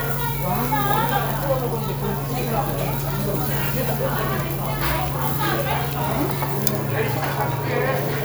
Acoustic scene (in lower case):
restaurant